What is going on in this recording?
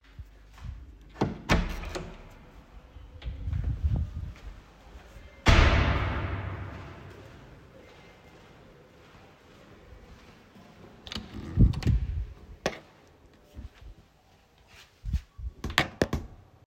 I walk from kitchen through hallway to my bedroom.